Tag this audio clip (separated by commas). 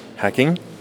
Speech, Human voice